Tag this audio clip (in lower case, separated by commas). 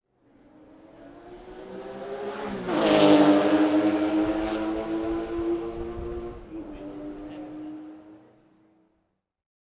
engine, vroom